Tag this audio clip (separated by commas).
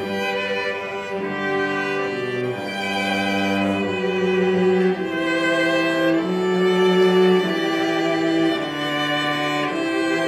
Wedding music, Music